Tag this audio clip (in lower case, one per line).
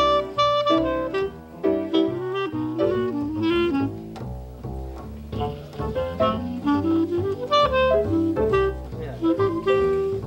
speech
music